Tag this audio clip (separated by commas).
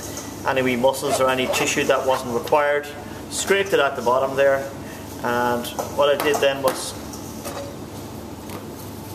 Speech